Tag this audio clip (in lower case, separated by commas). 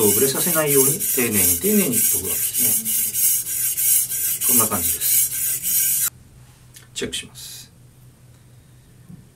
sharpen knife